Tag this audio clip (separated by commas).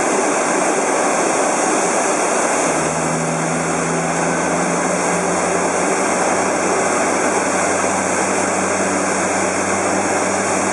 airscrew, Engine, outside, urban or man-made